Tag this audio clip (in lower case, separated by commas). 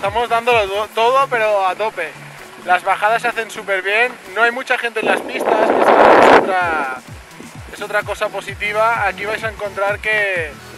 skiing